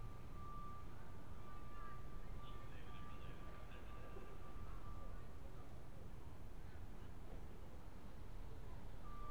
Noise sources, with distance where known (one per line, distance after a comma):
background noise